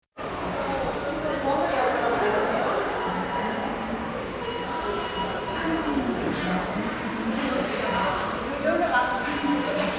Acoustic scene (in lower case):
subway station